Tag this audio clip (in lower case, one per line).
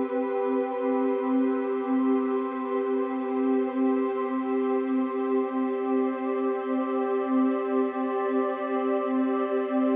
music